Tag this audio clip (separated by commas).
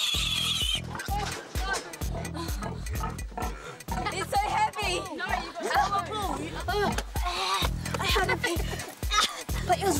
Oink, Speech, Music